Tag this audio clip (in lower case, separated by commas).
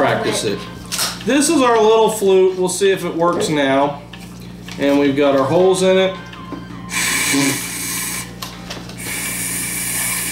speech